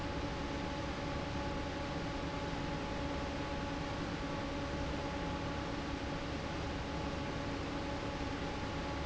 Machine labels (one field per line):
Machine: fan